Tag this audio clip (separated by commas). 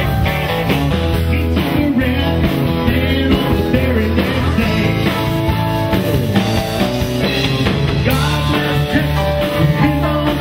Country, Music